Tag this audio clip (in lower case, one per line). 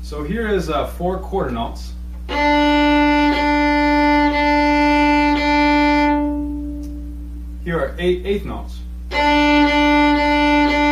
fiddle
music
musical instrument
speech